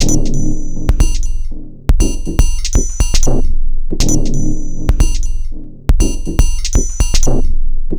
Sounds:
Percussion, Music, Drum kit, Musical instrument

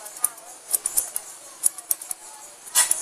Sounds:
Scissors, Domestic sounds

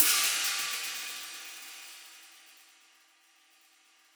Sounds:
Music, Percussion, Hi-hat, Musical instrument, Cymbal

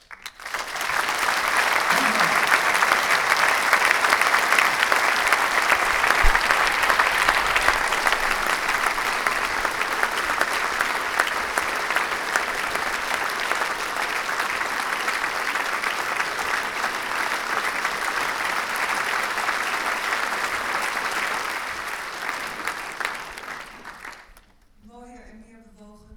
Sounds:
Applause, Human group actions

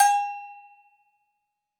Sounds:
Bell

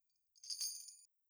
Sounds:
Bell, Chime

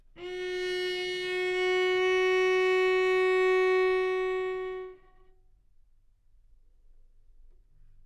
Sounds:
Bowed string instrument, Music, Musical instrument

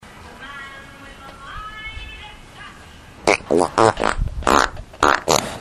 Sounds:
Fart

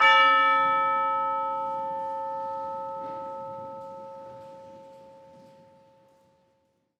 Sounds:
Music, Musical instrument, Percussion

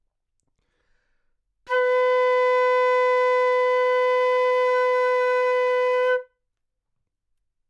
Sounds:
woodwind instrument, Music, Musical instrument

